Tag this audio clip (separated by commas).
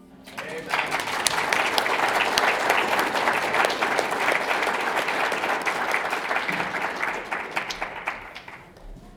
Human group actions, Crowd